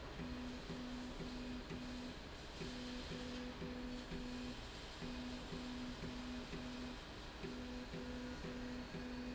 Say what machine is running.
slide rail